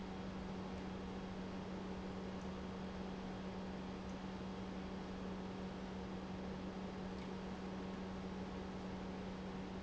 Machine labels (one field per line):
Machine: pump